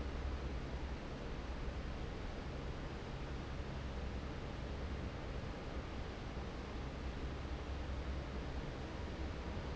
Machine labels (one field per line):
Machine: fan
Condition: normal